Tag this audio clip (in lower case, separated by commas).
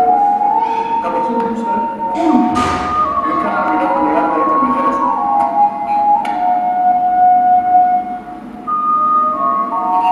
speech, music